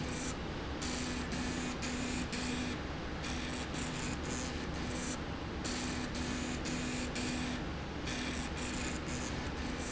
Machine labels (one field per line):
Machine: slide rail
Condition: abnormal